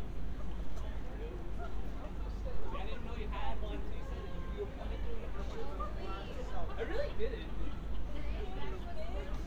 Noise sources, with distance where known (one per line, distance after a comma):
person or small group talking, near